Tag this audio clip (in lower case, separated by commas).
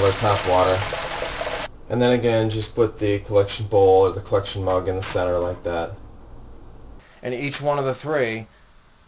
speech, inside a small room, water